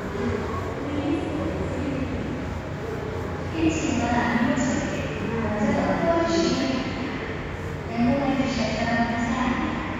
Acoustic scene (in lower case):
subway station